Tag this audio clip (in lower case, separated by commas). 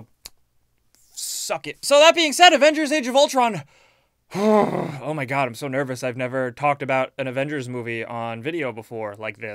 speech, inside a small room